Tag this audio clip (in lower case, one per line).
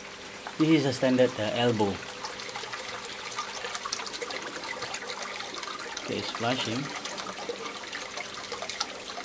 speech